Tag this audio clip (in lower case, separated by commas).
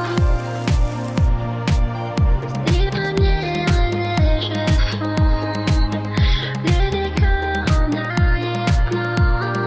raindrop, rain, raining